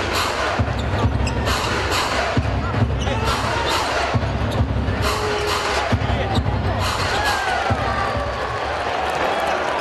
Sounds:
basketball bounce

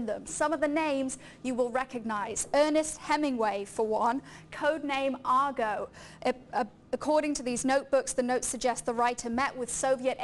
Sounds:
speech

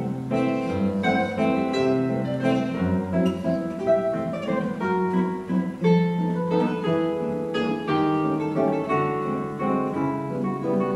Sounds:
plucked string instrument, acoustic guitar, musical instrument, guitar, music

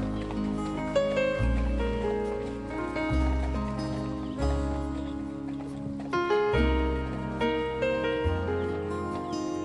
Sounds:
music, bird

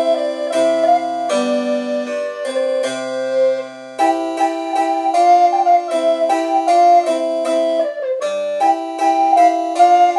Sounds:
musical instrument, music, harpsichord

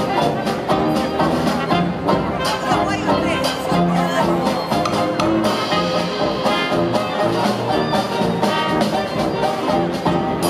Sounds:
orchestra

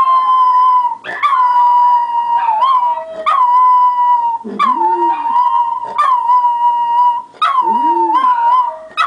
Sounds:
dog, bark, animal

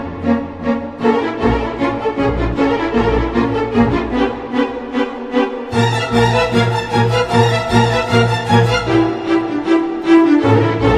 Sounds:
music

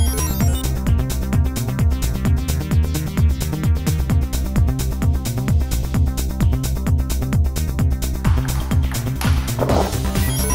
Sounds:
music

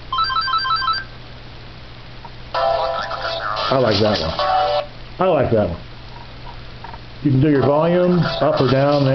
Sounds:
music, speech, telephone

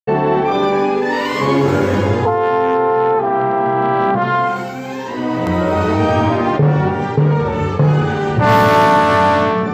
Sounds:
playing trombone

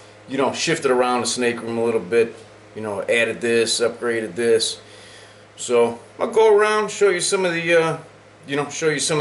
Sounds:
speech

